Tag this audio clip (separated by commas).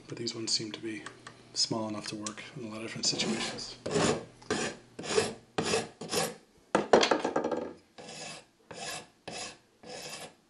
Filing (rasp), Wood, Rub